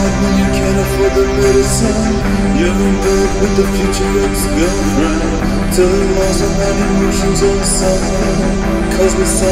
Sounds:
Music

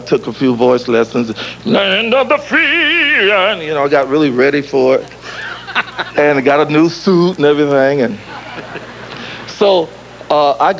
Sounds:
Speech, Male singing

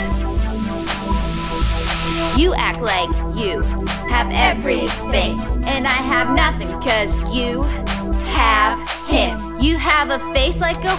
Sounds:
Blues, Music

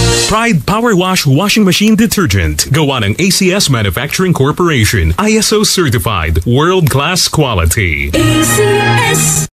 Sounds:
Music, Speech

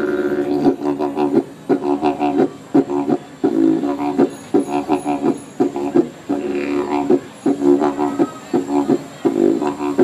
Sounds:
Music, Musical instrument, Didgeridoo

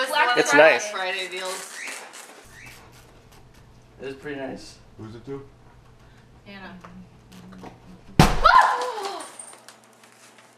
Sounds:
thwack

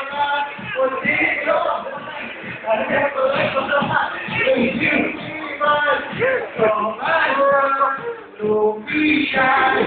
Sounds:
Male singing, Music

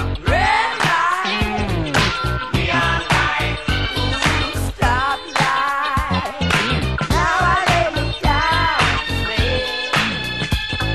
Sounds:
Hip hop music, Music

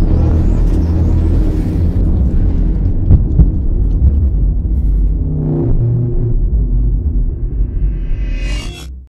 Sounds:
Music, Television

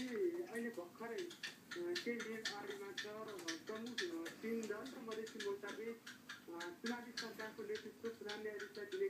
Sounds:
Speech

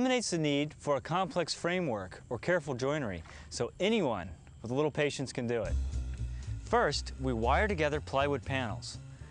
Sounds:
Speech, Music

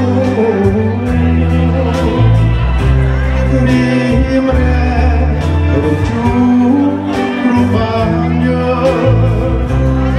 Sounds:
Singing, Music

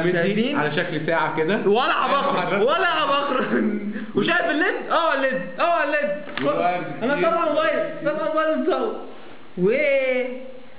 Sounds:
Speech

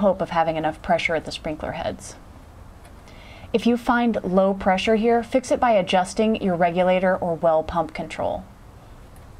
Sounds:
Speech

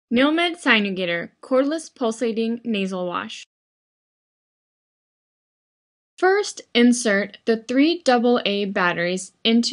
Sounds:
Speech

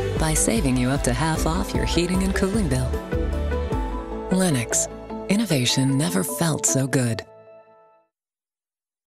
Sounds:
Speech, Music

